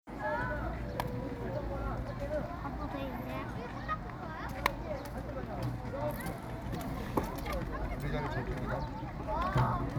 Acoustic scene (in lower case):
park